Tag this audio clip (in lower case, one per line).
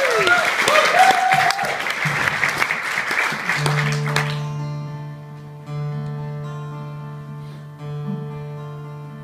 applause